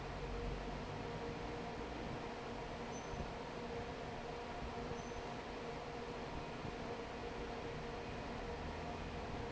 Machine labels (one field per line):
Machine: fan